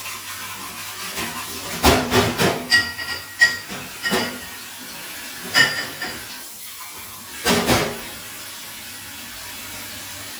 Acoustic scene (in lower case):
kitchen